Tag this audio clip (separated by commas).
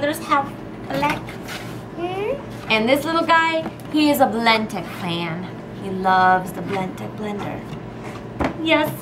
kid speaking, Speech